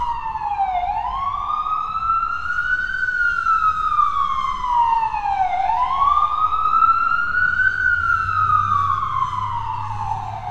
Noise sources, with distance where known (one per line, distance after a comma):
siren, near